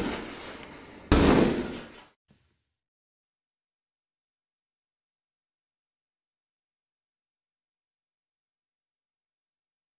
A large bang against an object